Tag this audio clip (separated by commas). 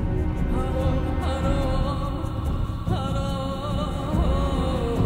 Music